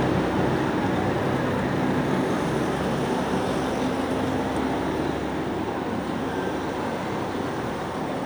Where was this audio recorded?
on a street